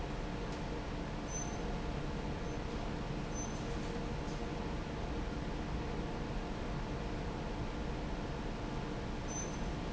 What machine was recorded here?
fan